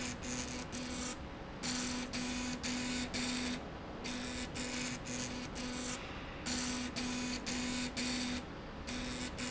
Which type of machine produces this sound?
slide rail